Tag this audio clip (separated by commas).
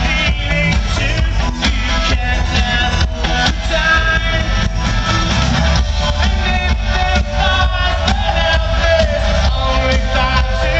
Music